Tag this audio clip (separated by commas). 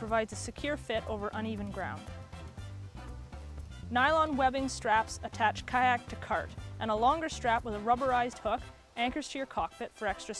Speech, Music